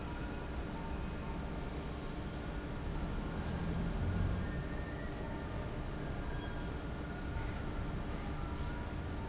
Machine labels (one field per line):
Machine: fan